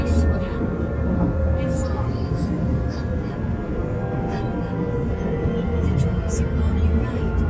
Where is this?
on a subway train